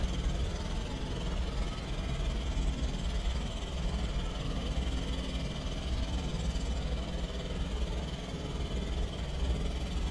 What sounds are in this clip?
jackhammer